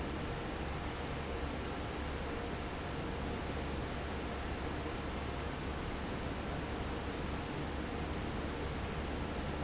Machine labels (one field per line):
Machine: fan